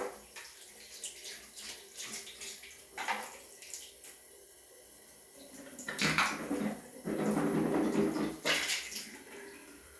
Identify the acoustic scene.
restroom